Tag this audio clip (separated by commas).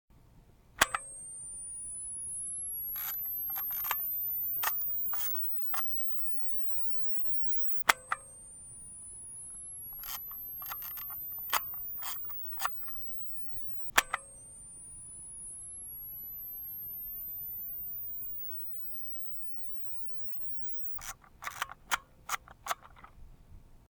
Mechanisms, Camera